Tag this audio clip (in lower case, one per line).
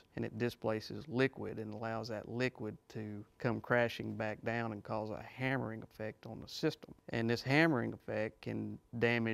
speech